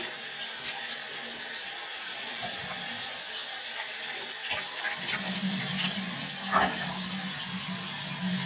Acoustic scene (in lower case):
restroom